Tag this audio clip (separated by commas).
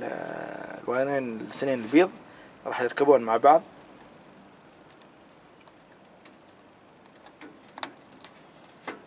Speech